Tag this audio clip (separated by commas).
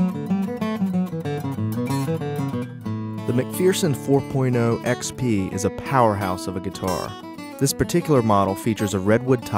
Plucked string instrument, Music, Speech, Acoustic guitar, Guitar, Musical instrument